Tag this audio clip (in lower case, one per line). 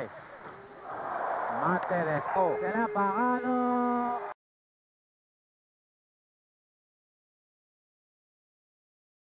speech